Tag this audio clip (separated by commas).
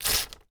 Tearing